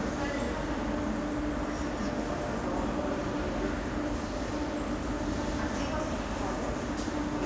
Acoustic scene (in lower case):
subway station